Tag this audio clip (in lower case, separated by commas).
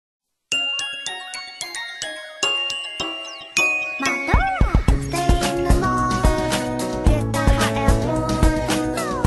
theme music, music